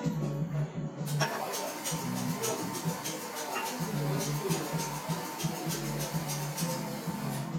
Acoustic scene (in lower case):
cafe